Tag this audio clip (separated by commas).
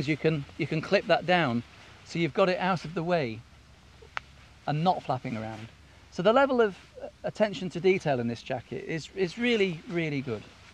Speech